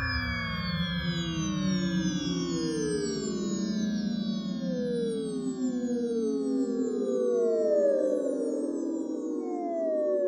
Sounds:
Musical instrument, Music, Synthesizer, Sampler

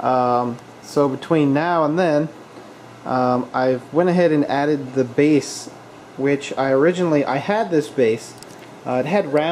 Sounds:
Speech

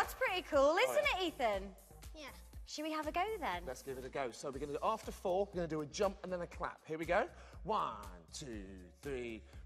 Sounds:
Speech, Music

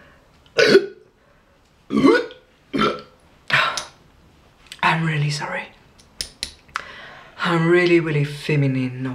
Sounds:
people burping

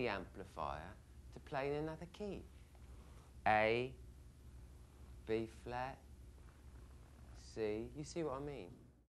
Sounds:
Speech

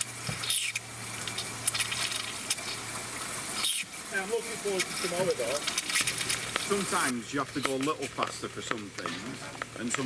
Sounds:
outside, urban or man-made, Speech

